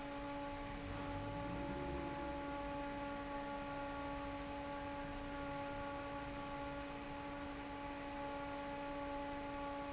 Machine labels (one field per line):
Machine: fan